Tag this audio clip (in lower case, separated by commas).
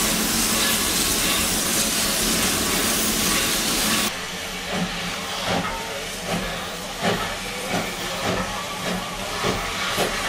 train, rail transport, steam, railroad car, hiss